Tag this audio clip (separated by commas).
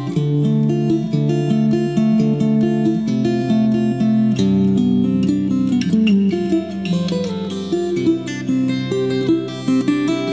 Plucked string instrument, Music, Musical instrument, Guitar, Acoustic guitar